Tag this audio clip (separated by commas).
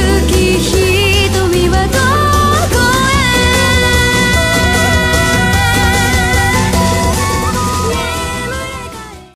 Music, Pop music